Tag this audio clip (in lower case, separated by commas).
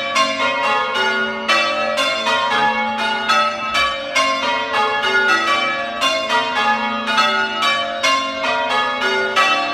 church bell ringing